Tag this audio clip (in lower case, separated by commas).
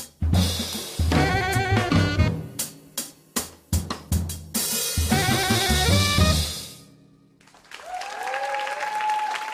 saxophone, brass instrument